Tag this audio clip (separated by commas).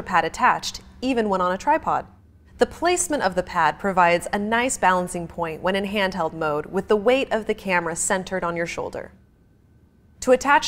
Speech